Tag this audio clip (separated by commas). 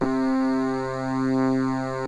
Keyboard (musical), Music, Musical instrument